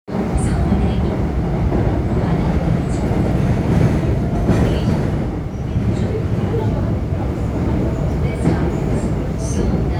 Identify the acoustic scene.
subway train